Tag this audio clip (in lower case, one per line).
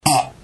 fart